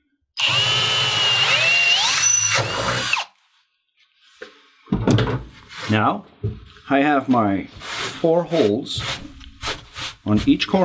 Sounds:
Speech

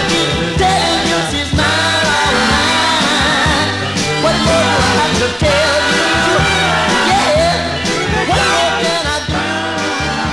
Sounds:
Ska, Music

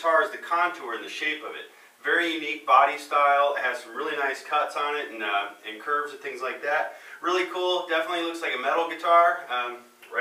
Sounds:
Speech

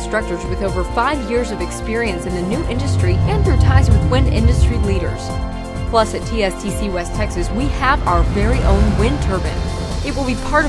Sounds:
Speech, Music

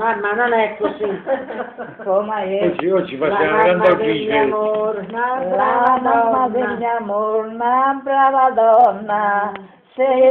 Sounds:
Speech, Singing

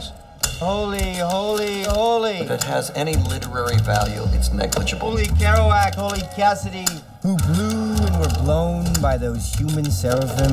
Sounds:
Speech, Music

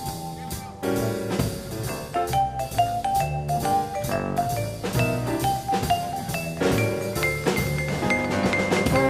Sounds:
playing vibraphone

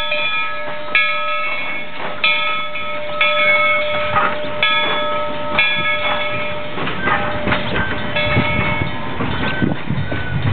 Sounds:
Rail transport, train wagon, Vehicle, Train

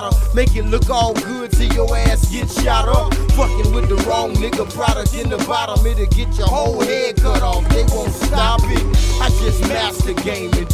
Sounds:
Hip hop music, Rapping, Music

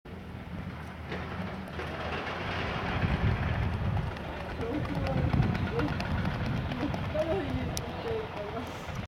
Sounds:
Speech, Run, people running, outside, urban or man-made

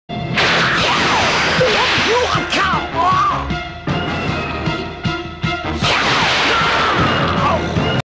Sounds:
Speech, Music

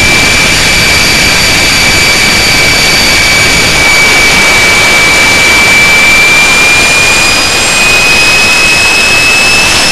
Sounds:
Jet engine

